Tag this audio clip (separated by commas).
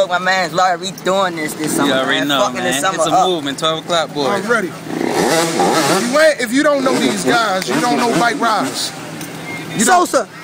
Speech